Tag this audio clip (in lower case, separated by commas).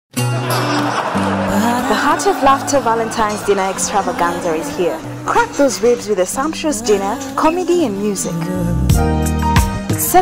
speech, laughter, rhythm and blues, music, singing